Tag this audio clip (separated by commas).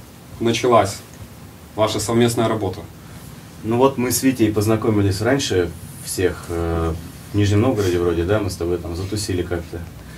Speech